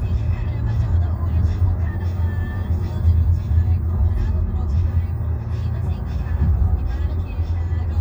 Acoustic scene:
car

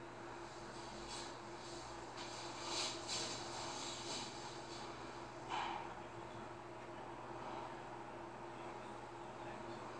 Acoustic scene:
elevator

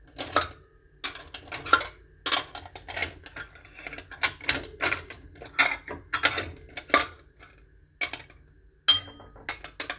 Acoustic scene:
kitchen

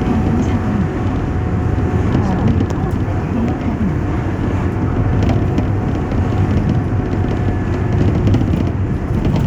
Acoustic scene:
bus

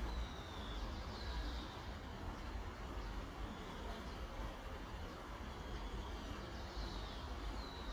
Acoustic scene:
park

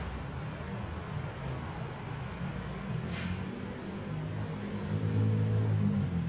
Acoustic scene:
residential area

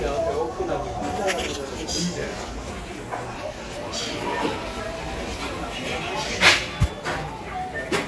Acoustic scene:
cafe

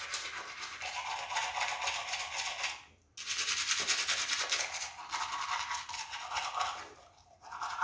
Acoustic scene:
restroom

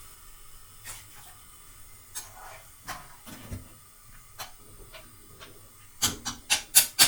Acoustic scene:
kitchen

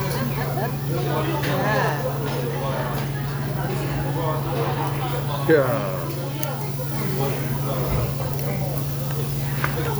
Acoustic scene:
restaurant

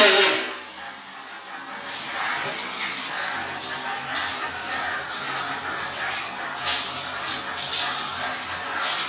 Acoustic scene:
restroom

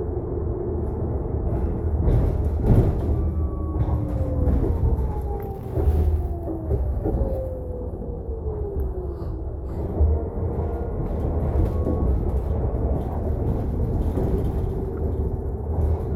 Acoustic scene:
bus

